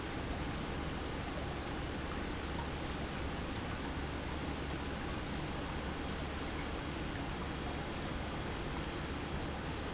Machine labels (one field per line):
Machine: pump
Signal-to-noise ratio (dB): -6 dB